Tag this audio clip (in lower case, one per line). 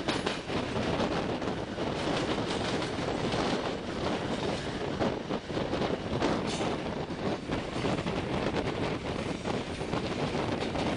rail transport
vehicle
train